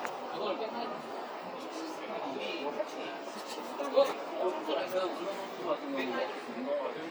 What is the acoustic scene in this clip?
crowded indoor space